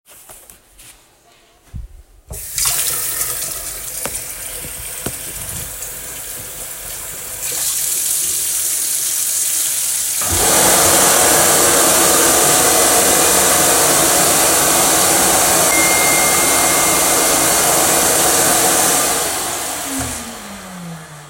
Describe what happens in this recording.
I turned on the water tap first, then the vacuum cleaner, and finally a phone notification came in.